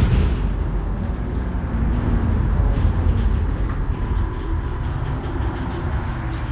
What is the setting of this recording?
bus